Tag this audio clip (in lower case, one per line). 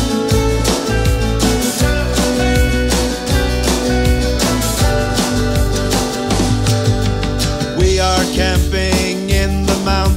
music